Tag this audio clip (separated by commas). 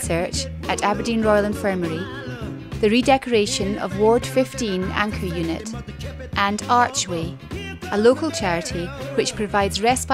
Speech, Music